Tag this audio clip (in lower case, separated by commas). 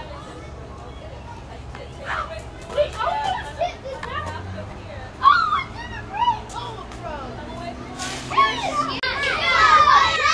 outside, urban or man-made, speech